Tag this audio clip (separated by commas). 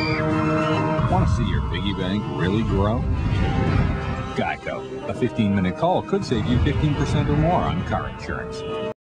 Speech, Music